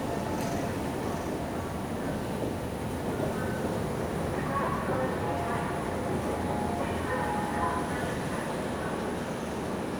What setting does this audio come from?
subway station